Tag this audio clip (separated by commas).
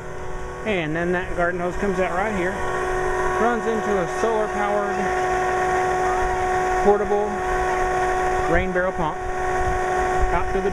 Speech